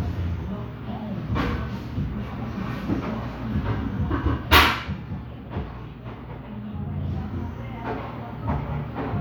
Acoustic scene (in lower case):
cafe